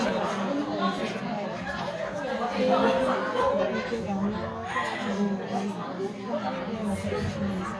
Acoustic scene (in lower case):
crowded indoor space